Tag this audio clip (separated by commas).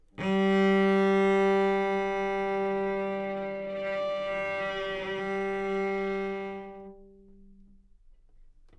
Musical instrument, Bowed string instrument, Music